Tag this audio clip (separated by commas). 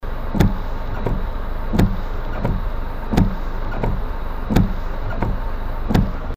Vehicle, Motor vehicle (road), Car